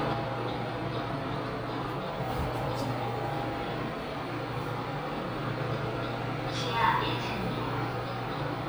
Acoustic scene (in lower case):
elevator